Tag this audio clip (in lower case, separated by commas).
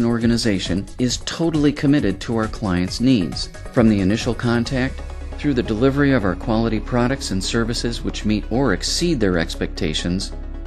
narration, speech, music